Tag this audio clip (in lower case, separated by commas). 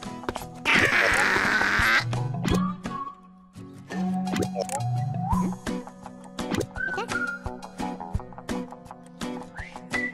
music